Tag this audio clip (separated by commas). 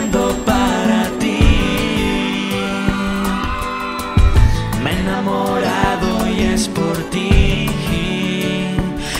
Singing, inside a large room or hall, Music